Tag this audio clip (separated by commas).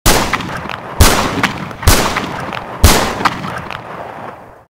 Machine gun